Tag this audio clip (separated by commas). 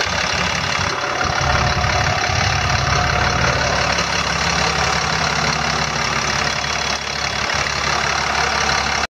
Truck, Vehicle